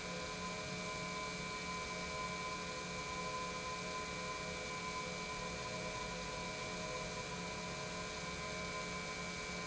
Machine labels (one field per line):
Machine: pump